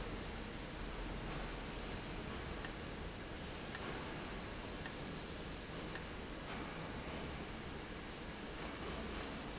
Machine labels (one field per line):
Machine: valve